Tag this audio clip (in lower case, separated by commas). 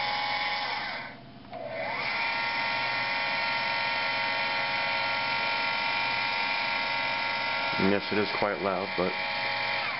speech